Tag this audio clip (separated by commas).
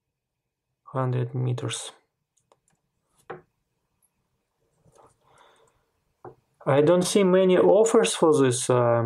inside a small room, Speech